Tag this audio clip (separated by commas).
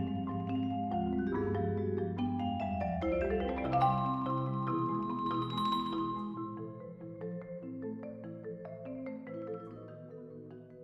Glockenspiel, xylophone, Mallet percussion